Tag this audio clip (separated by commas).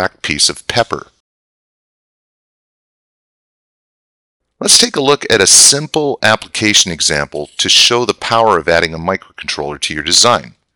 Speech